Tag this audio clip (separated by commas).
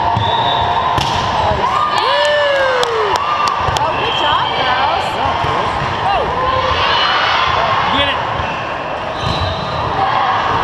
Speech